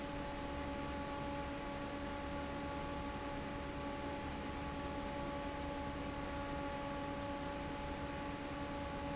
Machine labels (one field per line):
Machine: fan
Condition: normal